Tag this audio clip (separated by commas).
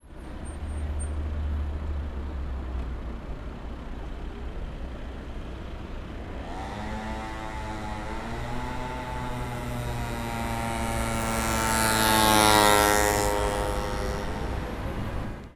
Motorcycle, Vehicle, Motor vehicle (road)